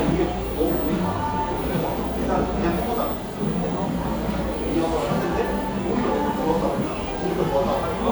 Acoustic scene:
cafe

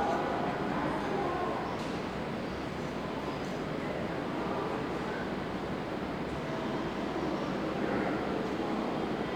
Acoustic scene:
subway station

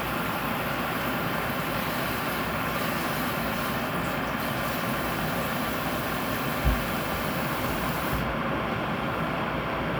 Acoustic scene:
kitchen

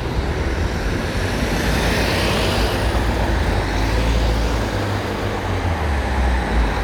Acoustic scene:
street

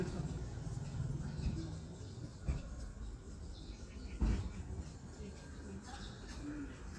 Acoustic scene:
residential area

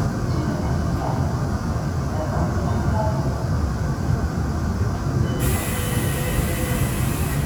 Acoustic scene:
subway train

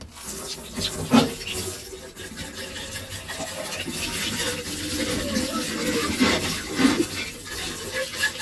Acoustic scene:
kitchen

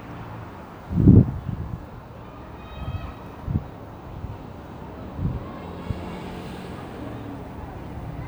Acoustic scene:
residential area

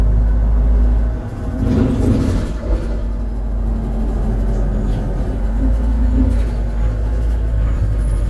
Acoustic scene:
bus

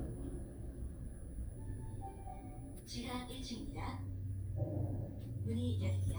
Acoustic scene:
elevator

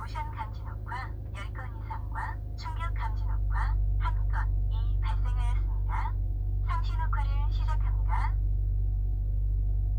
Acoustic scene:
car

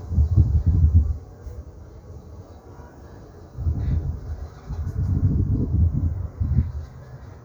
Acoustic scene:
park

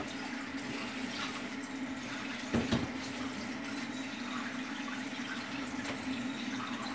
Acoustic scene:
kitchen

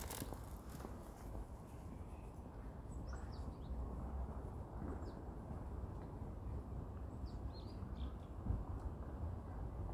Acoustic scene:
residential area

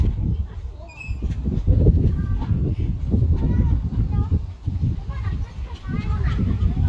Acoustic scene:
residential area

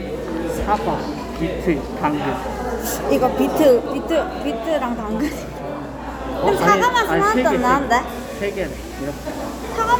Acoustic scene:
cafe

